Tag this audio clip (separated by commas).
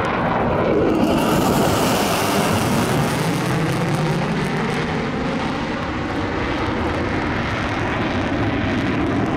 airplane flyby